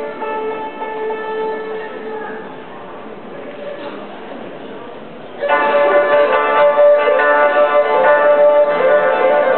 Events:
[0.00, 2.79] music
[0.00, 9.55] mechanisms
[3.45, 3.74] single-lens reflex camera
[5.36, 9.55] music

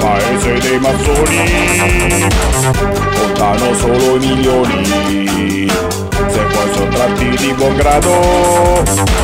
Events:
[0.00, 2.27] male singing
[0.00, 9.23] music
[3.10, 5.63] male singing
[6.12, 8.87] male singing

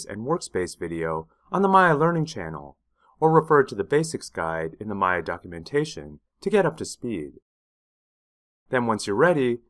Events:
[0.01, 1.23] male speech
[1.28, 1.46] breathing
[1.50, 2.75] male speech
[2.91, 3.13] breathing
[3.17, 6.21] male speech
[6.35, 7.39] male speech
[8.67, 9.65] male speech

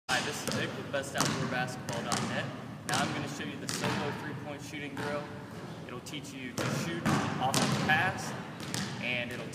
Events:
[0.05, 9.54] background noise
[0.06, 2.44] male speech
[0.41, 0.67] basketball bounce
[1.07, 1.37] basketball bounce
[1.82, 2.18] basketball bounce
[2.82, 3.17] basketball bounce
[2.82, 5.26] male speech
[3.61, 3.99] basketball bounce
[4.93, 5.19] basketball bounce
[5.88, 8.32] male speech
[6.40, 6.75] basketball bounce
[7.02, 7.27] basketball bounce
[7.48, 7.79] basketball bounce
[8.55, 8.83] basketball bounce
[8.96, 9.54] male speech

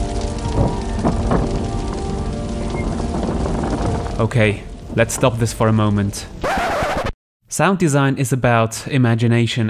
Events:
[0.00, 6.37] rain
[0.00, 7.07] music
[0.01, 7.08] wind
[0.52, 0.69] generic impact sounds
[0.94, 1.39] generic impact sounds
[2.69, 4.14] generic impact sounds
[4.14, 4.62] male speech
[4.87, 6.25] male speech
[7.49, 9.65] male speech

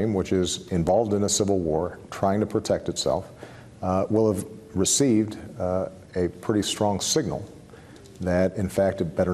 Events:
[0.00, 0.57] male speech
[0.00, 9.33] background noise
[0.69, 1.93] male speech
[2.10, 3.25] male speech
[3.33, 3.61] breathing
[3.83, 4.41] male speech
[4.73, 5.44] male speech
[5.58, 5.85] male speech
[6.12, 6.25] male speech
[6.42, 7.39] male speech
[7.64, 7.93] breathing
[7.89, 8.22] clicking
[8.20, 9.33] male speech

